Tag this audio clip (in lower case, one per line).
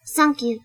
human voice
speech
female speech